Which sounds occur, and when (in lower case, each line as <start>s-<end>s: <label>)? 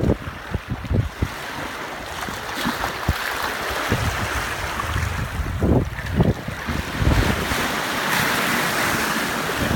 0.0s-0.4s: wind noise (microphone)
0.0s-9.7s: stream
0.0s-9.7s: wind
0.5s-1.3s: wind noise (microphone)
3.0s-3.1s: wind noise (microphone)
3.7s-4.4s: wind noise (microphone)
4.2s-5.8s: wind noise (microphone)
4.6s-6.5s: wind noise (microphone)
6.7s-7.6s: wind noise (microphone)
9.5s-9.7s: wind noise (microphone)